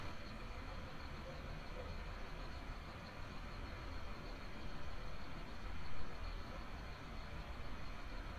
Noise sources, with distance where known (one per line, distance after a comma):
large-sounding engine